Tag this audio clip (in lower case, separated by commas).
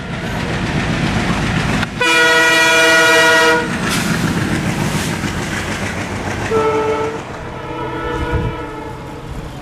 train horning